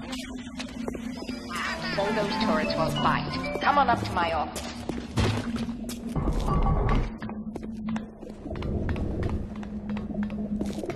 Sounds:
Music, Run, Speech

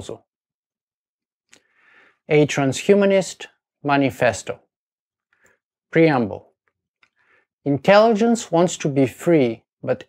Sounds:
Speech

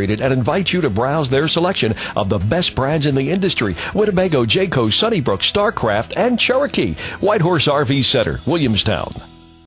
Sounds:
Music, Speech

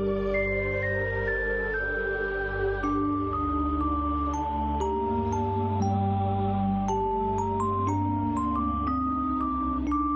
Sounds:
Electronica, Electronic music, Music

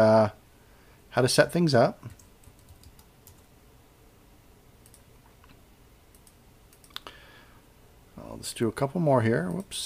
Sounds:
Speech, Computer keyboard, Typing

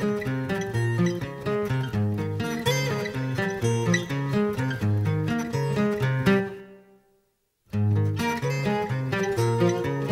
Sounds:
Music

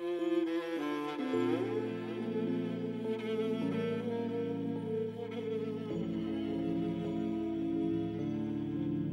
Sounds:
Music, Double bass

